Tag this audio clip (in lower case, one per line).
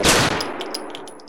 gunfire
explosion